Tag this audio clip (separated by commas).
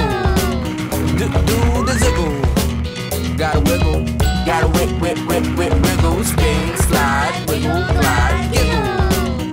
Music